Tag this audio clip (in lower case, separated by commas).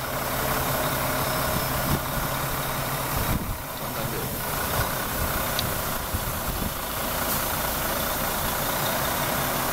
truck, motor vehicle (road), vehicle, speech